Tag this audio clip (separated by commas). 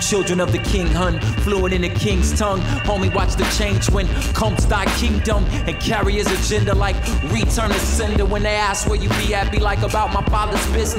Singing